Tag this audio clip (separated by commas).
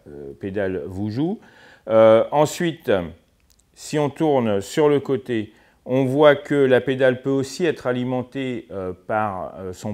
Speech